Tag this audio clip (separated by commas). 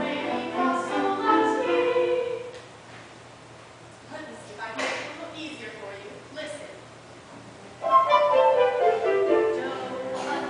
Music, Speech